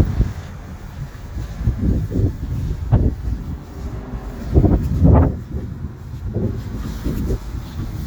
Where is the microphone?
in a residential area